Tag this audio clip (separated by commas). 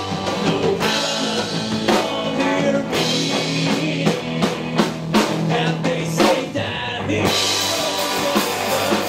Music